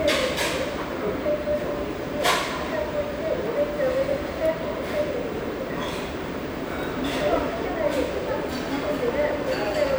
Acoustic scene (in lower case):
restaurant